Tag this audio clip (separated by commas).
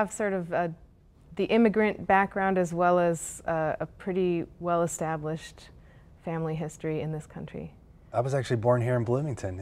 Speech